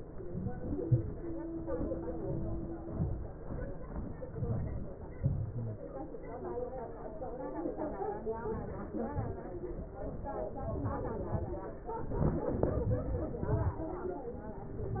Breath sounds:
Inhalation: 0.17-0.59 s, 2.19-2.73 s, 4.40-4.89 s, 8.44-8.87 s
Exhalation: 0.84-1.12 s, 2.85-3.27 s, 5.16-5.68 s, 9.12-9.54 s

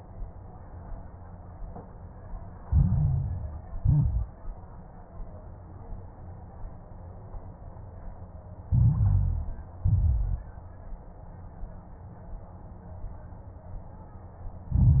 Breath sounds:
Inhalation: 2.64-3.74 s, 8.68-9.78 s, 14.73-15.00 s
Exhalation: 3.80-4.34 s, 9.82-10.48 s
Crackles: 2.64-3.74 s, 3.80-4.34 s, 8.68-9.78 s, 9.82-10.48 s, 14.73-15.00 s

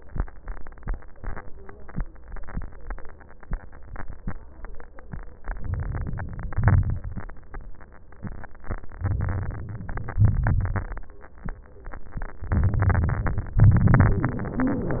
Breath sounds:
Inhalation: 5.40-6.52 s, 9.03-10.18 s, 12.43-13.59 s
Exhalation: 6.53-7.54 s, 10.23-11.24 s, 13.62-15.00 s
Wheeze: 13.62-15.00 s
Crackles: 6.53-7.54 s, 12.43-13.59 s, 13.62-15.00 s

